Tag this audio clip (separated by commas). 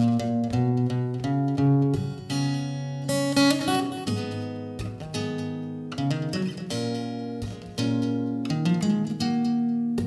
playing acoustic guitar, Music, Acoustic guitar, Musical instrument, Plucked string instrument, Strum, Guitar